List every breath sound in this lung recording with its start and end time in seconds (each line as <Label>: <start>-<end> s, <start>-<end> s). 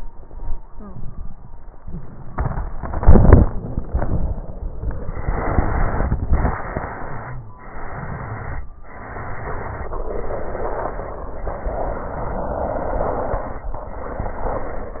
Inhalation: 5.00-6.17 s, 7.55-8.67 s, 10.06-11.18 s, 12.62-13.73 s
Exhalation: 6.33-7.45 s, 8.82-9.94 s, 11.38-12.49 s, 13.91-15.00 s
Crackles: 6.31-7.44 s, 7.53-8.66 s, 8.82-9.95 s